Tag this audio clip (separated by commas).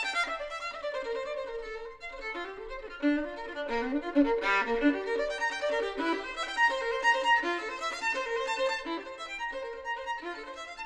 Violin, Musical instrument, Music